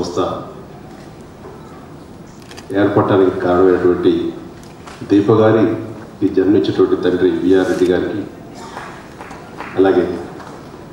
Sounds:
speech, narration, male speech

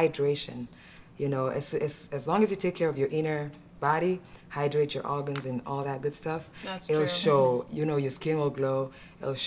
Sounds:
inside a small room, speech

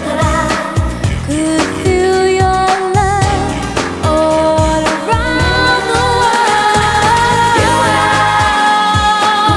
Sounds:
music of asia, music, pop music

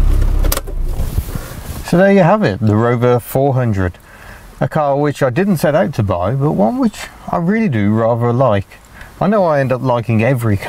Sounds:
car, vehicle

